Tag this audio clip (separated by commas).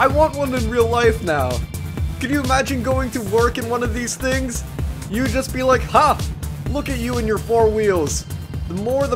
Speech, Music